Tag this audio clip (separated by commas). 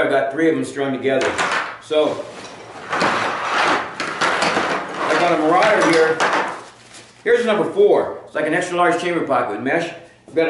Speech, inside a small room